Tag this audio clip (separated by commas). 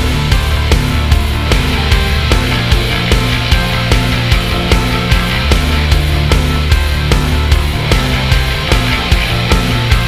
Music